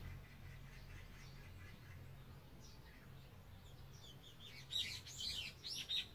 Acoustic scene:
park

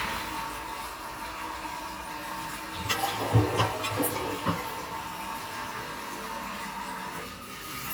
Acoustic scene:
restroom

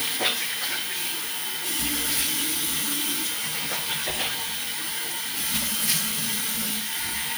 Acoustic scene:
restroom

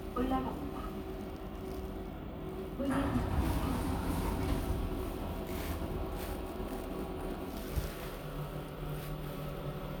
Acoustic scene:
elevator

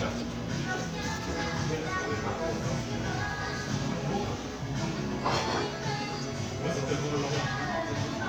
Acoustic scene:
crowded indoor space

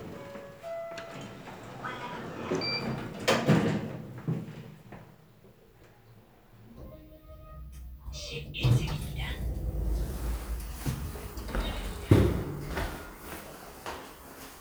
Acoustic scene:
elevator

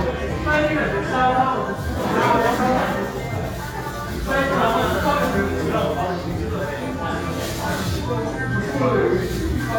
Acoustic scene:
crowded indoor space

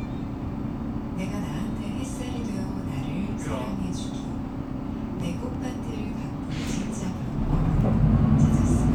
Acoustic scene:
bus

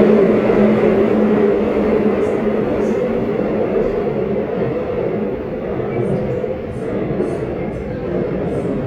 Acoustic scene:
subway train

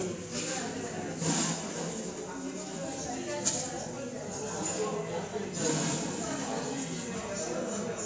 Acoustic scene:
cafe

